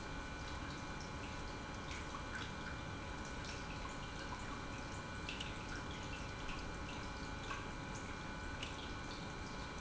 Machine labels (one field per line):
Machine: pump